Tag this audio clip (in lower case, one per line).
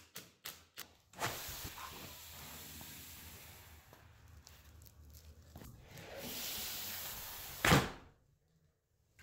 sliding door